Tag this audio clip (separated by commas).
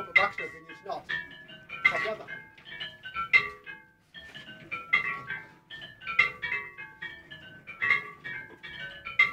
Change ringing (campanology)